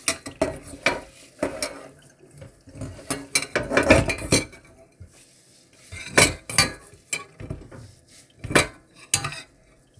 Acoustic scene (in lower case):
kitchen